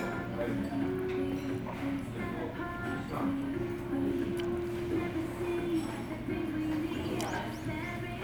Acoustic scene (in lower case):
restaurant